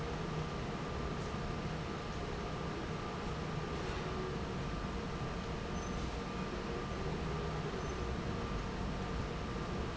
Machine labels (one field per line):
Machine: fan